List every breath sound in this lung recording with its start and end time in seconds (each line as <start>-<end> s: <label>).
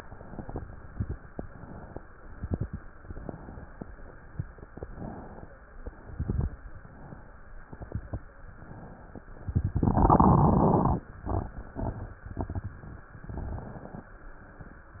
0.00-0.59 s: inhalation
0.64-1.23 s: exhalation
0.64-1.23 s: crackles
1.34-1.94 s: inhalation
2.22-2.83 s: exhalation
2.22-2.83 s: crackles
2.98-3.69 s: inhalation
4.74-5.51 s: inhalation
5.92-6.68 s: exhalation
5.92-6.68 s: crackles
6.69-7.46 s: inhalation
7.60-8.36 s: exhalation
7.60-8.36 s: crackles
8.48-9.25 s: inhalation
13.11-14.21 s: inhalation